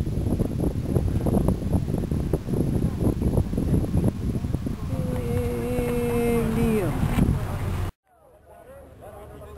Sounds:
vehicle

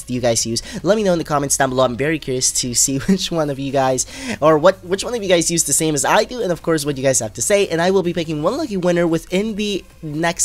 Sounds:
speech

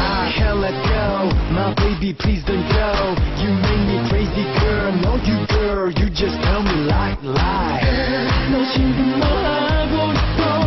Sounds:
background music, music, soundtrack music

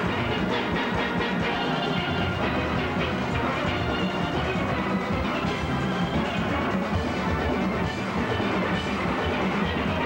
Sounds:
orchestra, music

